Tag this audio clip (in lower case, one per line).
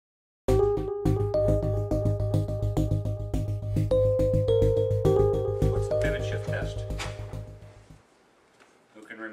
synthesizer